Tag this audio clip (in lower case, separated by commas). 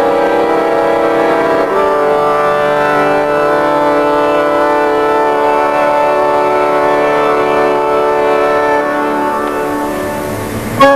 music